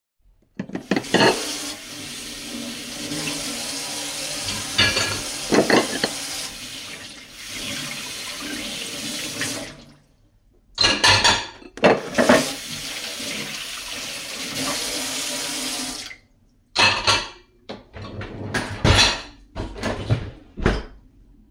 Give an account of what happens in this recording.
I rinsed off a few plates in the sink before putting them in the dishwasher